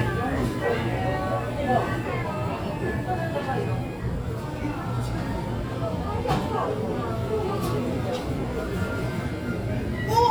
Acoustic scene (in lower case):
crowded indoor space